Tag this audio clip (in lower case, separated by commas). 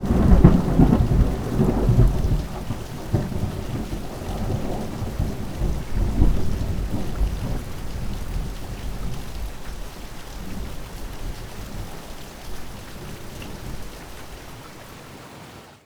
thunder, water, thunderstorm, rain